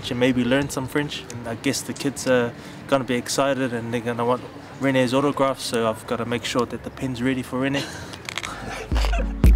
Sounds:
speech, music

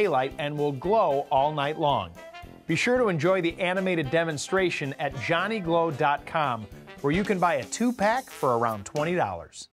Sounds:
music, speech

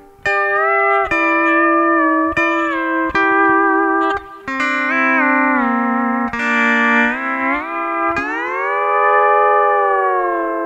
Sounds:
musical instrument, music

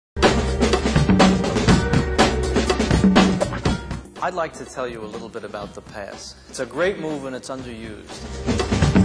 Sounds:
drum, music, speech

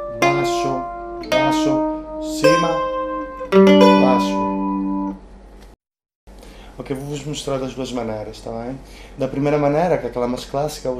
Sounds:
plucked string instrument, speech, mandolin, music, musical instrument

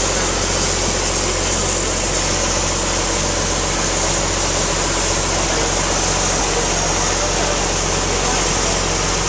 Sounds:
pump (liquid), water

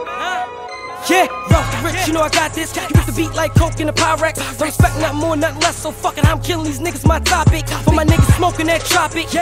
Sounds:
music

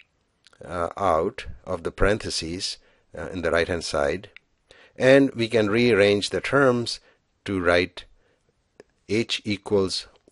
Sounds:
speech

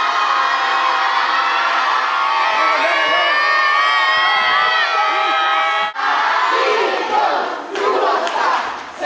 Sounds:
inside a large room or hall, speech

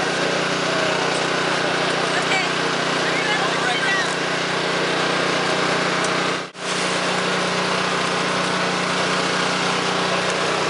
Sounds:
outside, rural or natural, speech

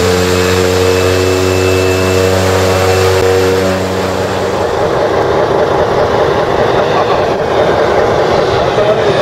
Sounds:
fixed-wing aircraft, aircraft, aircraft engine, speech, vehicle

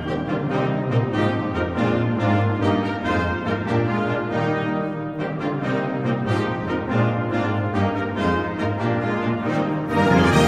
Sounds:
music, brass instrument

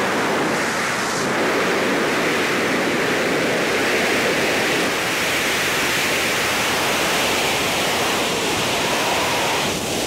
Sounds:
pink noise, outside, rural or natural

